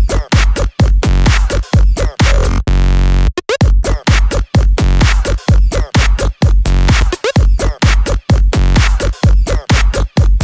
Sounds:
Electronic dance music

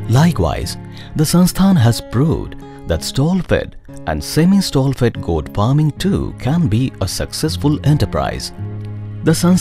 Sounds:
Music, Speech

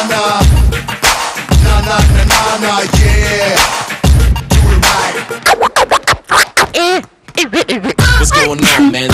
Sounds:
Music

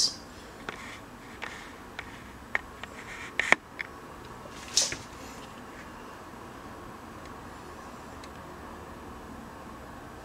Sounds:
inside a small room

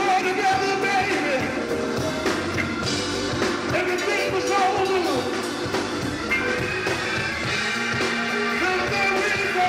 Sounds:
Music

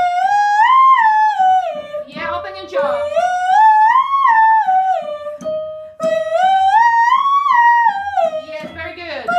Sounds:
Singing

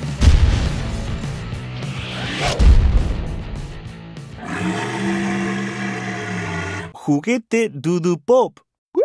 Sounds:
dinosaurs bellowing

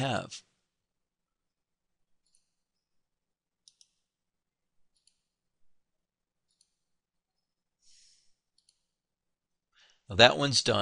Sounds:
Speech

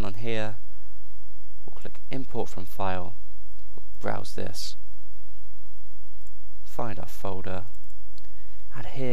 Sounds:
Speech

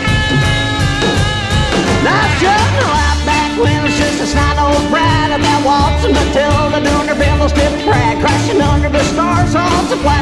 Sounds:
Psychedelic rock, Singing, Music

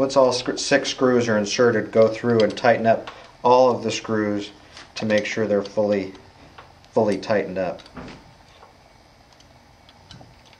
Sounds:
Speech, Door

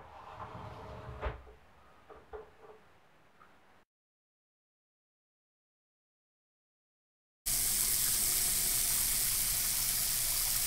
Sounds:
inside a small room, Silence

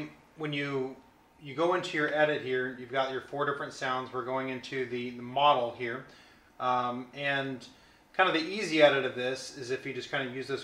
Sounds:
Speech

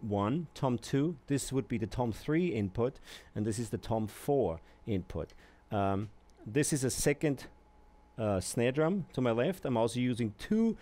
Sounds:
Speech

